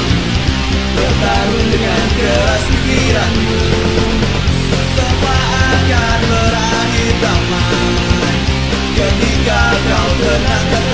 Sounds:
Jazz, Music

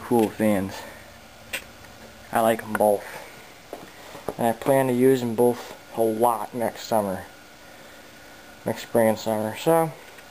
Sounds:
Speech, Mechanical fan

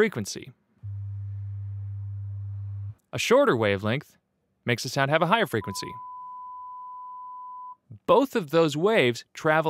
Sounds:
Sine wave, Chirp tone

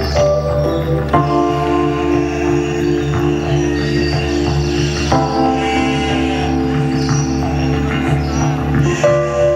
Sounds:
Music, Bleat

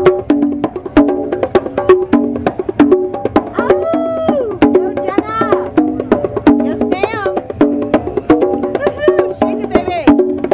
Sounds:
playing congas

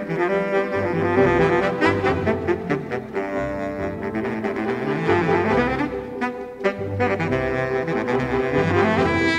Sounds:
Music

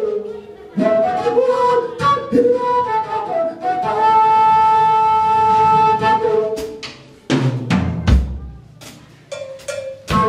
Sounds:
playing flute, Flute, Music

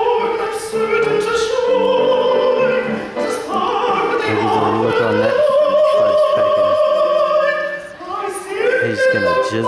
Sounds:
Opera, Music, Speech

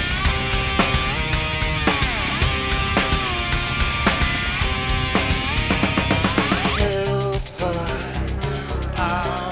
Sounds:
Music

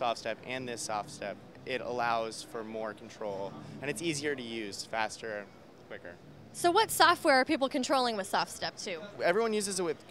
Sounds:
Speech

